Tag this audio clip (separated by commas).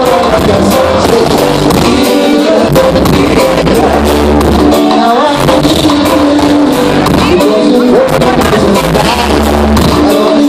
Music, Reggae